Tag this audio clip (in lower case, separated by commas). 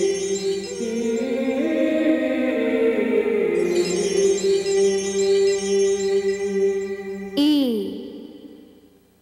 music